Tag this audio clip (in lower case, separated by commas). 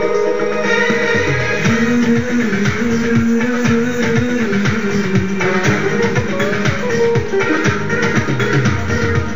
music, rhythm and blues